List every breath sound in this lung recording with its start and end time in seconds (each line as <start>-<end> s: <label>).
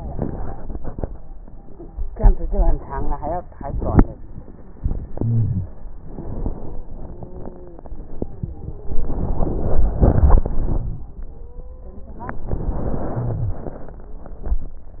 4.74-6.03 s: inhalation
5.17-5.70 s: wheeze
6.01-8.82 s: exhalation
6.96-8.96 s: stridor
8.82-11.15 s: inhalation
8.93-11.15 s: crackles
11.03-12.26 s: stridor
13.06-13.63 s: wheeze